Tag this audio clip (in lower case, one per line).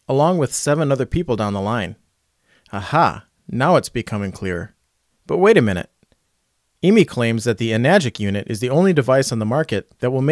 speech